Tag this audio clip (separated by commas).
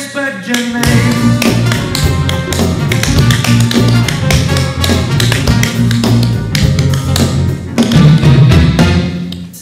Tap, Music